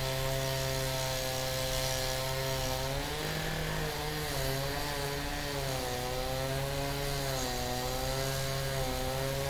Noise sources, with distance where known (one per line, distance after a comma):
unidentified powered saw, near